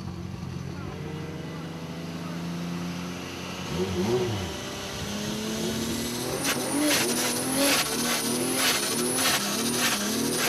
Cars accelerating quickly